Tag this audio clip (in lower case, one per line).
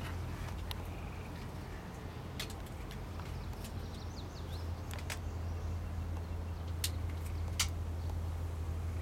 bird